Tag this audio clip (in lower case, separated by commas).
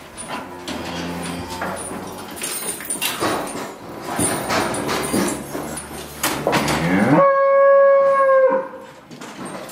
livestock, bovinae, moo